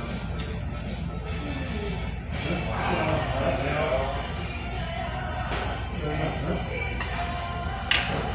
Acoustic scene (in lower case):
restaurant